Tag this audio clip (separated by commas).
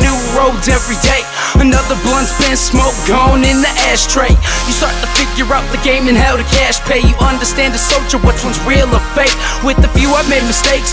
Music, Soundtrack music